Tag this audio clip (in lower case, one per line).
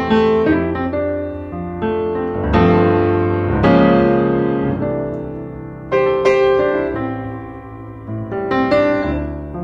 music